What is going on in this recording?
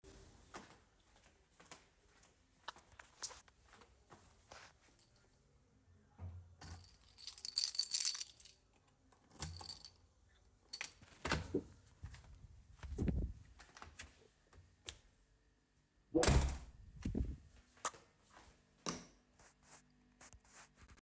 I walked to the bedroom while holding my keys. I used the keychain to open and close the door. After entering the room, I turned the light switch on.